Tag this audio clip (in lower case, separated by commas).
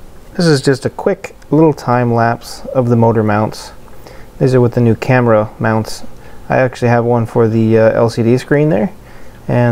speech